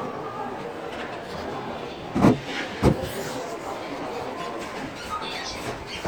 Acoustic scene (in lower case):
crowded indoor space